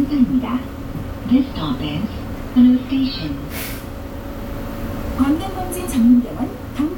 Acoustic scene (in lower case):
bus